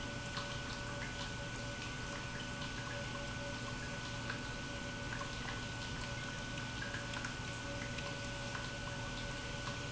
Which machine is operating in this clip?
pump